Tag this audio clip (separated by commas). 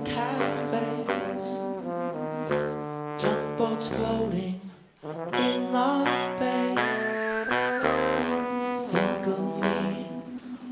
Music